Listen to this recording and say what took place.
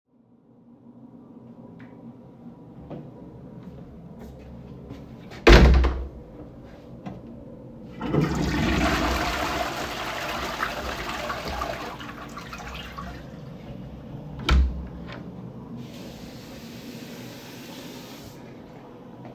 I walked into a toilet cabin and flushed it while somebody was washing his hands.